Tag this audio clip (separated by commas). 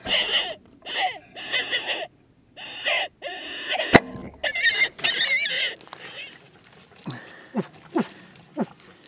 Animal, outside, rural or natural